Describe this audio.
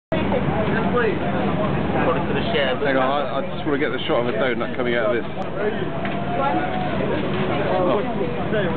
A man talking inaudibly with chatter from other people in background